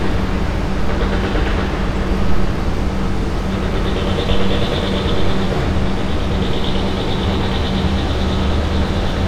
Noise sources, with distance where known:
engine of unclear size, near
jackhammer, near

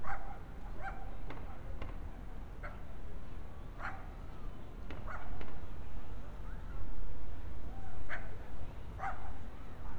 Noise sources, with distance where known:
non-machinery impact
dog barking or whining, near

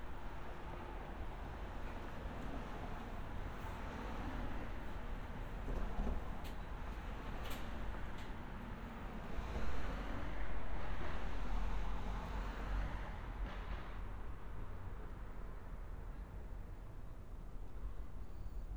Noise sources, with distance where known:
background noise

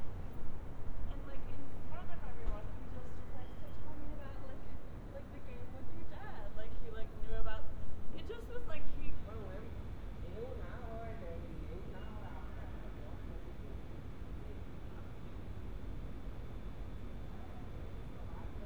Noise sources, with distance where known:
person or small group talking

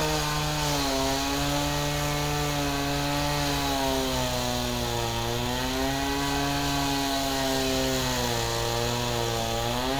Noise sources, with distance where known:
unidentified powered saw

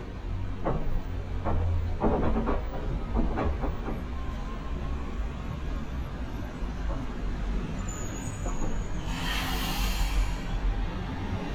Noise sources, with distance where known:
large-sounding engine, near

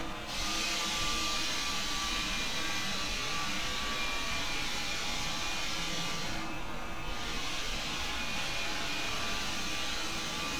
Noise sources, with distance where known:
unidentified powered saw, near

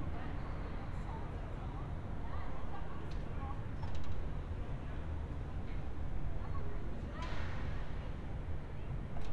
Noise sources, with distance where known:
background noise

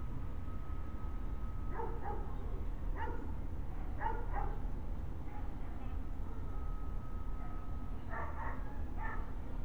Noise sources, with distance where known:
unidentified alert signal, far
dog barking or whining

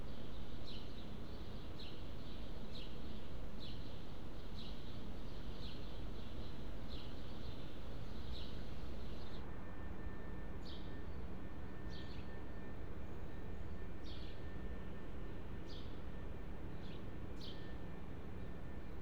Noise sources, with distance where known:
background noise

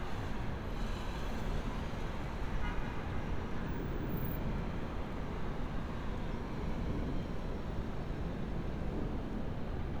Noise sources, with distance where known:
car horn, far

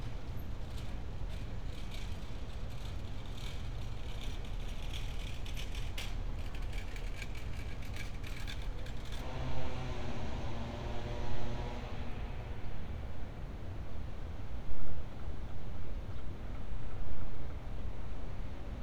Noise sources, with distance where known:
background noise

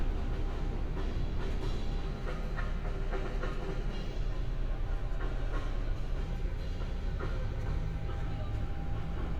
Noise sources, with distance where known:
music from a fixed source

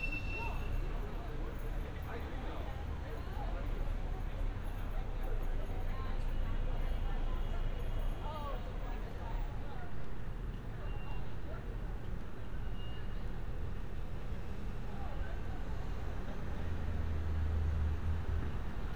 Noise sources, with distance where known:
unidentified alert signal
person or small group talking

